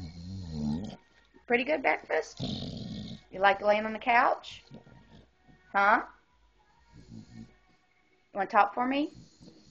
A dog grunts and snorts as a woman speaks